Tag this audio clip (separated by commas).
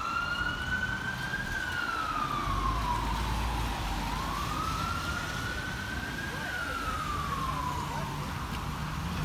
ambulance siren